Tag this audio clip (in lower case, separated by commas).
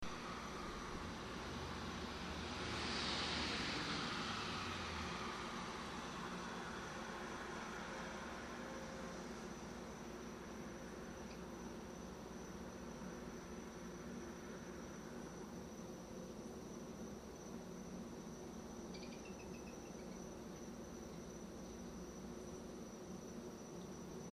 vehicle, aircraft